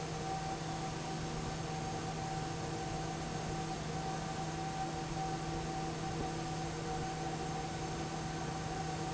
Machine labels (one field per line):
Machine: fan